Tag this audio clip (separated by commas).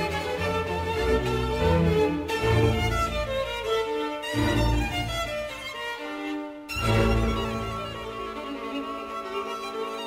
fiddle, Musical instrument, Music